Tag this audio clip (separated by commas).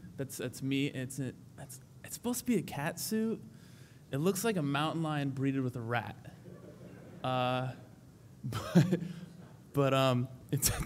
Speech